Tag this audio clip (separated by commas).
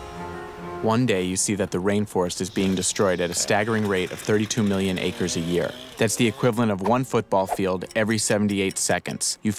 Speech, Music